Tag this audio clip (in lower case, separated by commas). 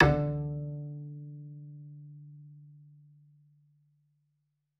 bowed string instrument, musical instrument, music